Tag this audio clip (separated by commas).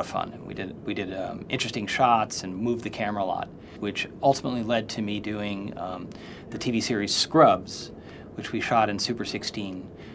Speech